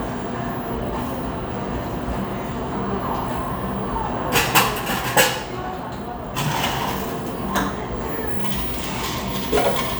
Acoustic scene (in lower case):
cafe